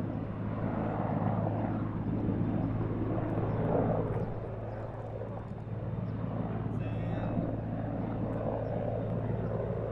An aircraft engine is operating, mechanical whirring is present, and an adult male speaks in the background